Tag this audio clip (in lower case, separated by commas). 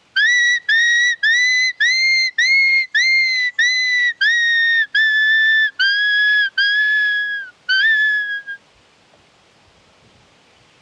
people whistling